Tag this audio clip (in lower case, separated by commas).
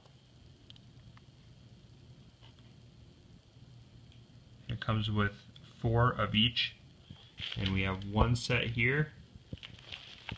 inside a small room, speech